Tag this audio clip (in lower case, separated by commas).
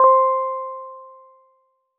musical instrument, piano, keyboard (musical), music